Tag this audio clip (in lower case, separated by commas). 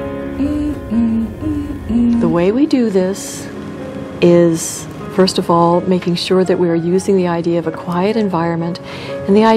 music, inside a small room, speech